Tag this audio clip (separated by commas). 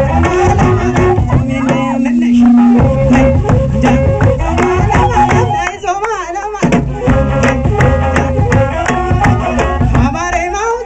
Crowd, Music